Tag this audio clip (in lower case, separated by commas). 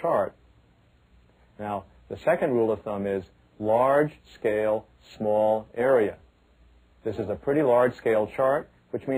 speech